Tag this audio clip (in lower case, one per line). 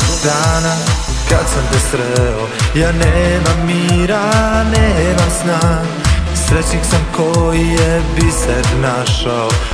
music